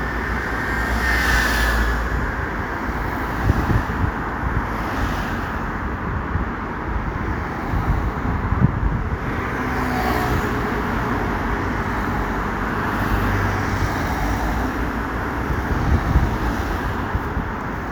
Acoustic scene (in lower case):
street